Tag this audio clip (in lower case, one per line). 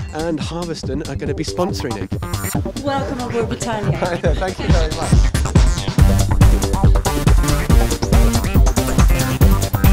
speech
music